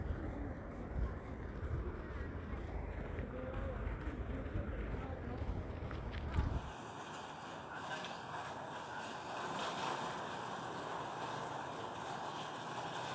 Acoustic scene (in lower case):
residential area